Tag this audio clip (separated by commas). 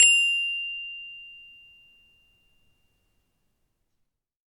Musical instrument, Marimba, Percussion, Mallet percussion, Music